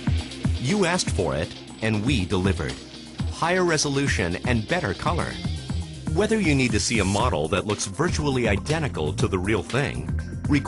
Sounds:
music, speech

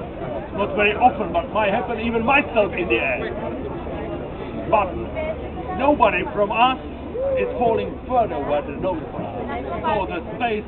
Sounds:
speech

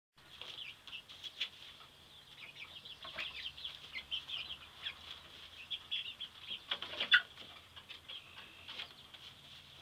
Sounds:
bird

